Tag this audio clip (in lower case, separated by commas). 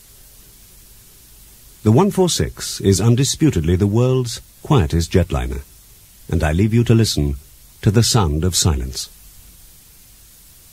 speech